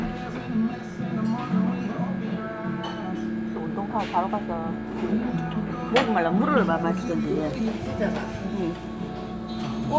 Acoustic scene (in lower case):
restaurant